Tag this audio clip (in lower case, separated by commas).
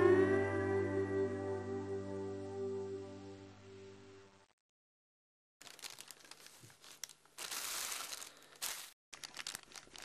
music